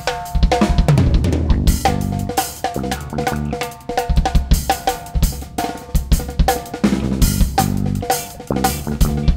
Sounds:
cymbal, playing drum kit, music, percussion, musical instrument, drum, drum kit

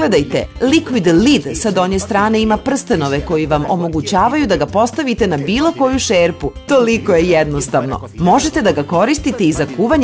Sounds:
music, speech

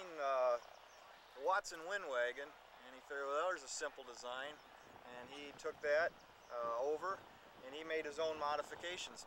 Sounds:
speech

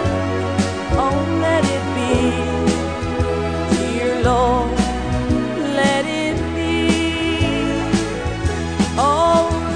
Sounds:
music, christmas music

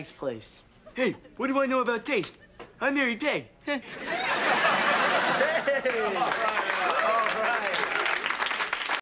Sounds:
speech

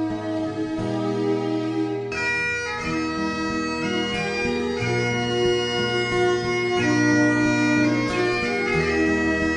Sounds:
bagpipes, wind instrument

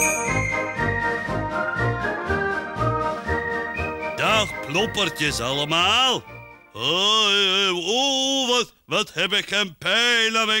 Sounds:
music, speech

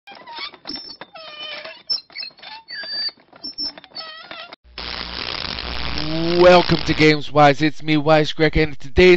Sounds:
speech

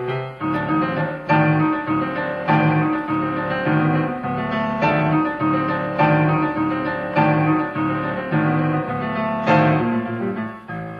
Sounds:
music, musical instrument

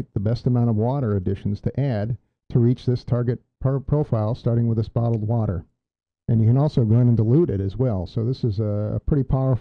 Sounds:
speech

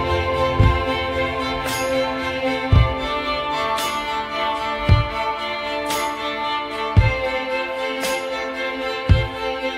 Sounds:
orchestra

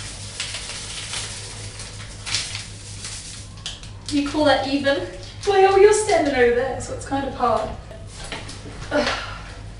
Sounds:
speech, bathtub (filling or washing)

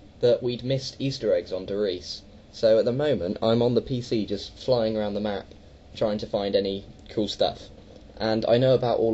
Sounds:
speech

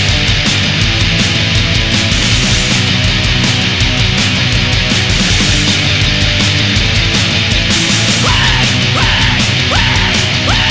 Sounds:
heavy metal, music

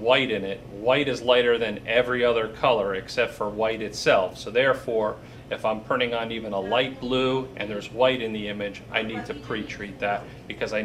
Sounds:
speech

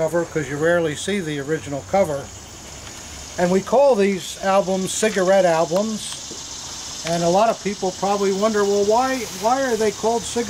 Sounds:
outside, rural or natural, speech

